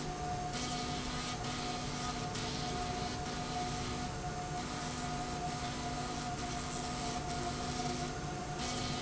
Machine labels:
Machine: slide rail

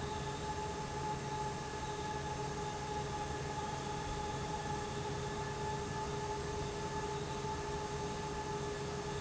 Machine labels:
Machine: fan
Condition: abnormal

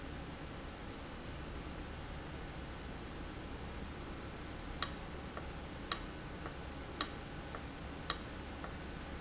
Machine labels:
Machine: valve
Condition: abnormal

